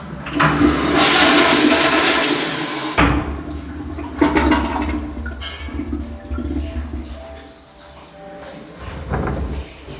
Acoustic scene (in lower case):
restroom